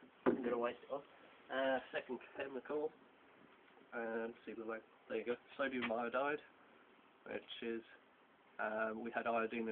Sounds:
speech

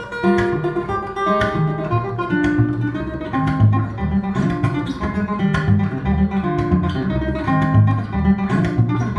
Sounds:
strum
guitar
music
musical instrument
plucked string instrument

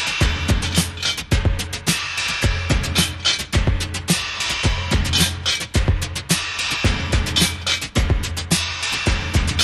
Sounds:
music

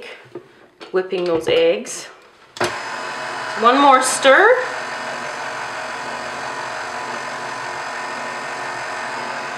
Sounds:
blender

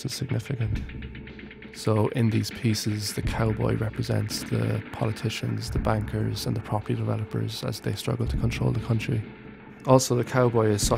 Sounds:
speech

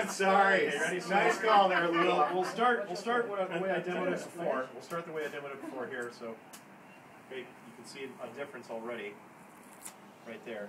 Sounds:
speech

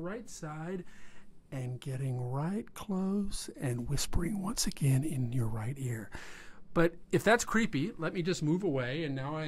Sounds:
speech

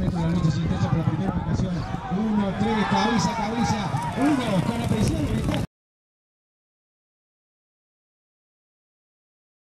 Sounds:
speech

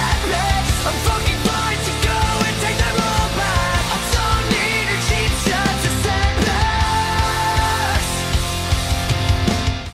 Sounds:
music

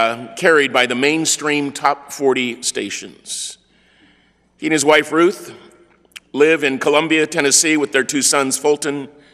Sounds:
speech

